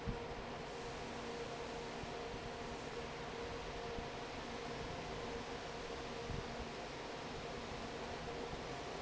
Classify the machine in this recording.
fan